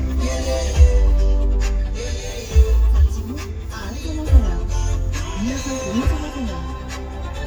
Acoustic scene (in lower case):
car